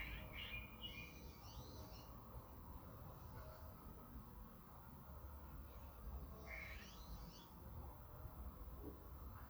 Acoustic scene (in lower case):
park